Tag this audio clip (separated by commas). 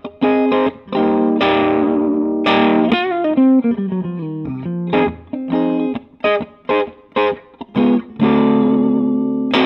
Strum, Plucked string instrument, Musical instrument, Electric guitar, Guitar, Music